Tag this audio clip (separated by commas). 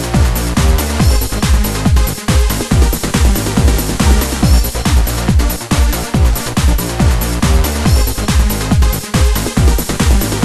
Electronic music, Techno, Music